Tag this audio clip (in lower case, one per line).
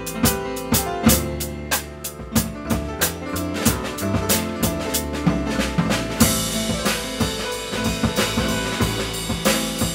pizzicato
bowed string instrument
double bass